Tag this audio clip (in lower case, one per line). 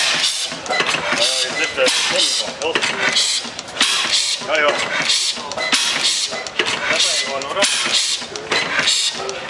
engine
medium engine (mid frequency)
speech